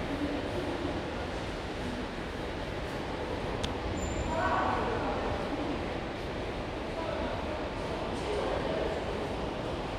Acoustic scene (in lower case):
subway station